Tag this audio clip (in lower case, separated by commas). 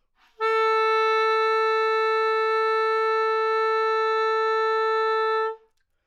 musical instrument, music, wind instrument